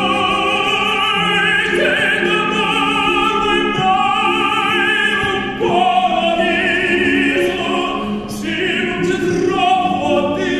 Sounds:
Singing, Opera

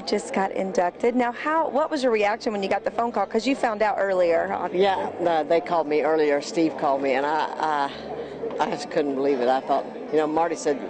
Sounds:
Speech, Music

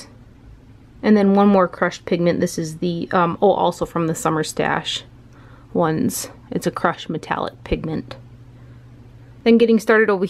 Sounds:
Speech, inside a small room

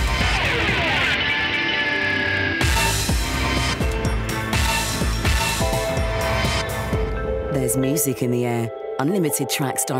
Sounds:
Speech, Music

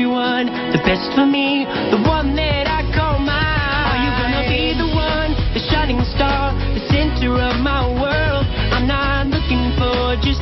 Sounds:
Music

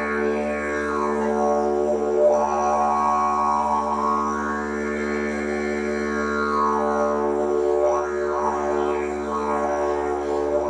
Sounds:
playing didgeridoo

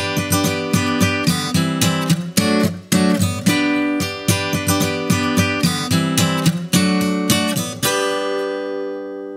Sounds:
Music

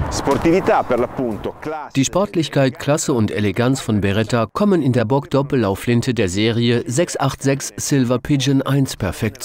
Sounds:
Speech

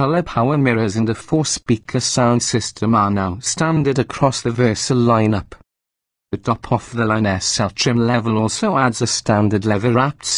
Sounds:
Speech

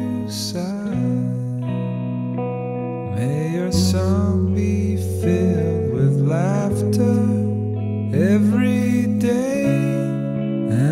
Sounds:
Lullaby, Music

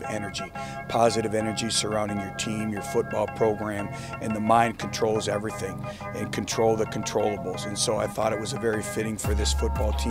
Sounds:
Speech, Music

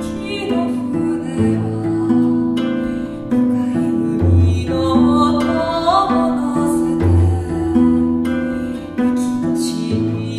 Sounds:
Music

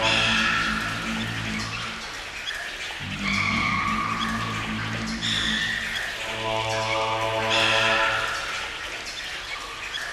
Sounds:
Music, Electronic music

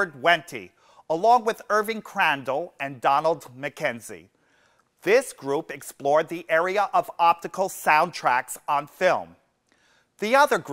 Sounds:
Speech

